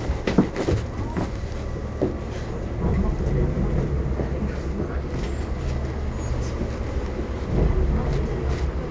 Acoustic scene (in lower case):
bus